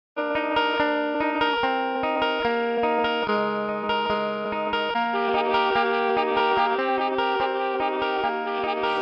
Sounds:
Effects unit, Music

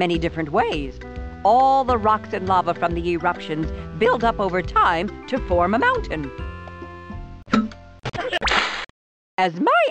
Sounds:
Speech, Music

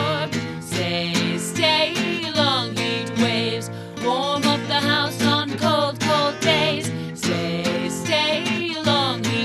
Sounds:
Music

